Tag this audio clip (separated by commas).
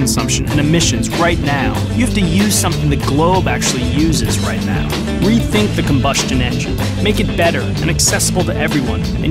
Music, Speech